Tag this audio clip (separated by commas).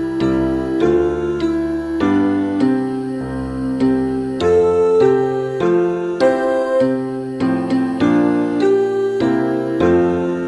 Music